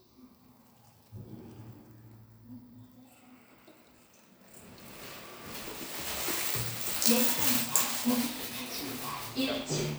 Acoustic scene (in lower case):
elevator